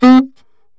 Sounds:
music, musical instrument, woodwind instrument

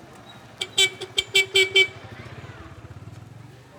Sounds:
vehicle, motor vehicle (road)

